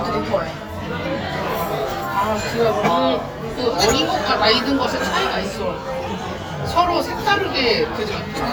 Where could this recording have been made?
in a crowded indoor space